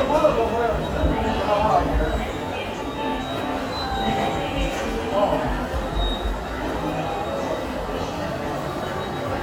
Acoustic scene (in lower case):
subway station